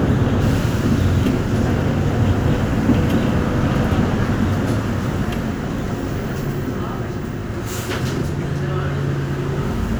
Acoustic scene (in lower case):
bus